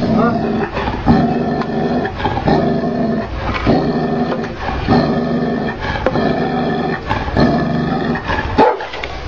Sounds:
animal
pets

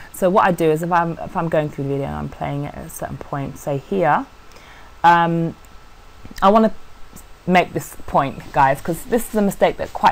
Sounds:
speech

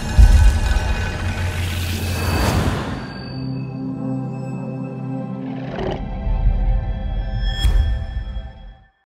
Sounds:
music

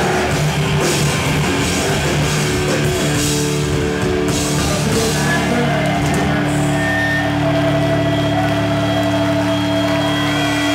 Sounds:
music

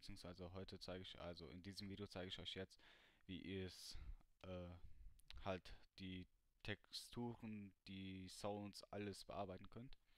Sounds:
speech

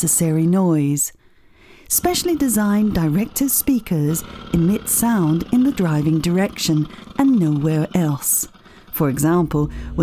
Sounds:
speech

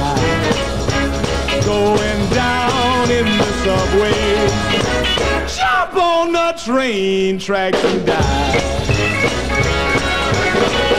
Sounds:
music

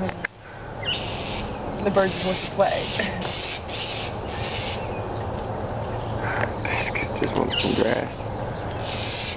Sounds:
speech

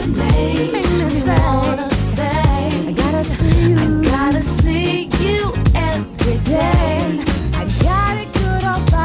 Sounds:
pop music
rhythm and blues
music

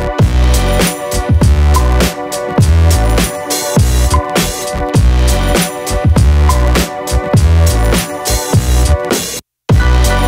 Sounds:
music

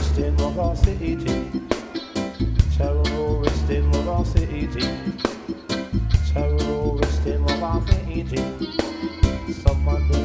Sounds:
music

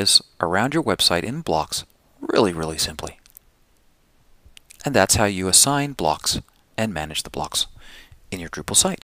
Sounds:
speech

